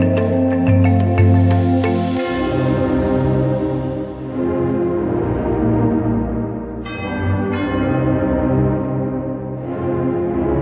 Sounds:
music, tender music

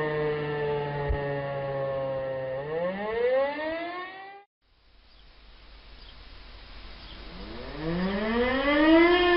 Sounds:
siren

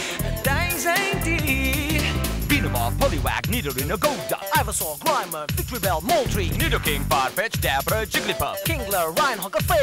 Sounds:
music, pop music

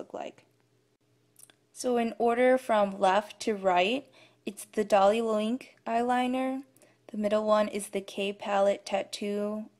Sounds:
speech

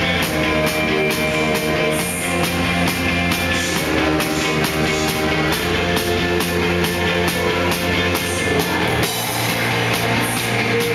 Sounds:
music

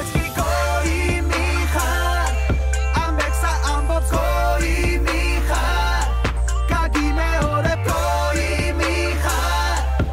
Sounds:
soundtrack music, music, exciting music

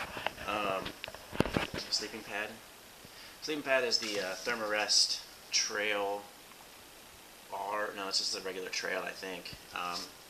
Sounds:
speech

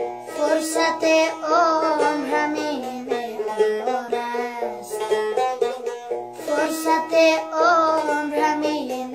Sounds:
music

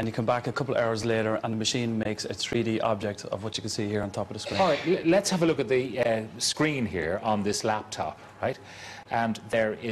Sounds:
speech

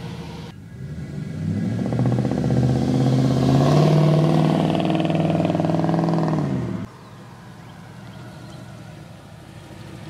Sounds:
tire squeal, motor vehicle (road), truck, vehicle

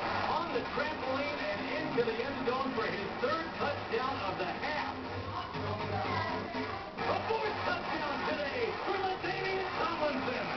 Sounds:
music, speech

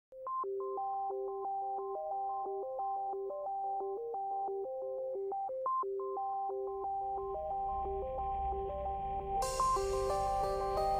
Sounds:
sidetone

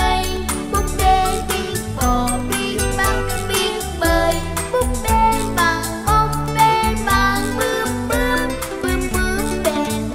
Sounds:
music for children, music

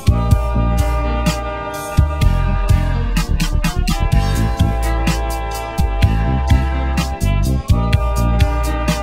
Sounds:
music

